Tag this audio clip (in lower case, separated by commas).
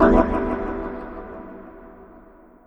keyboard (musical), musical instrument, organ, music